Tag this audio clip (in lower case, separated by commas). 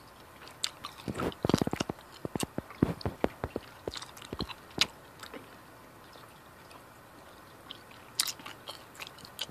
mastication